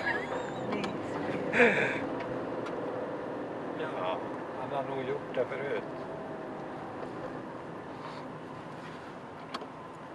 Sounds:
car, speech, vehicle

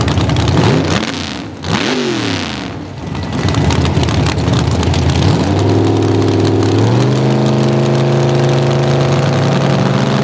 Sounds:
car, vehicle, motorcycle, driving motorcycle, race car

